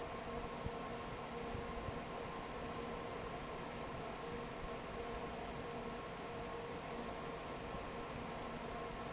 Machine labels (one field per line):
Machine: fan